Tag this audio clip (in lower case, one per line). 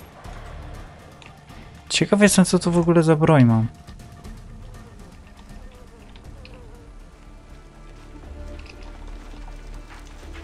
speech
music